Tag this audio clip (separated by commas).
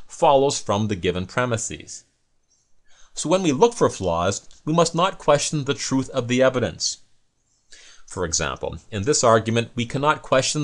Speech